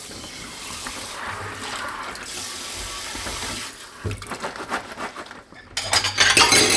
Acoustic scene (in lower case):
kitchen